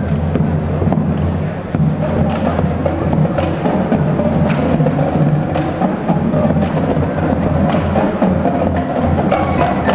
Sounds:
Speech, Music

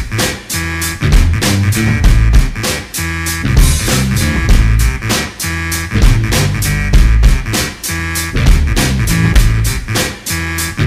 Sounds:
Music

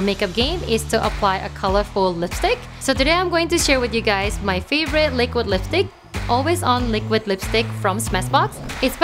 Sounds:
Music, Speech

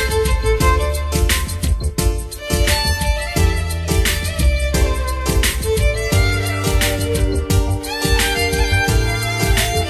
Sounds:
Theme music, Music

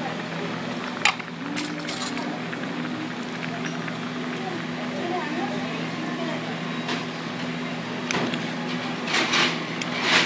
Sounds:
inside a small room, Speech

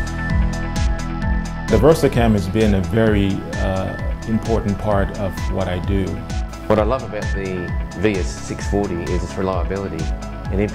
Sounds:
Speech, Music

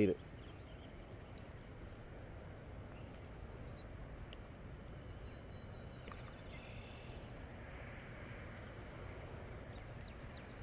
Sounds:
Speech, Animal

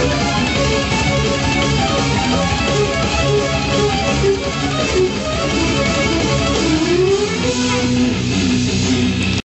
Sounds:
Accordion, Music, Musical instrument

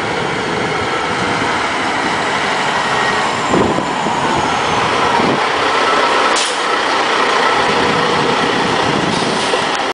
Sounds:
Vehicle, Air brake, Truck

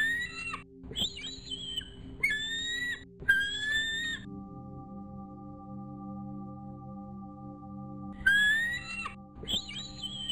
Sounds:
outside, rural or natural, Chirp, Music, bird call

